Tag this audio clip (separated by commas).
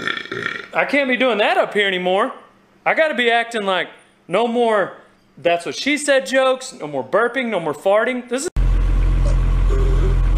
people burping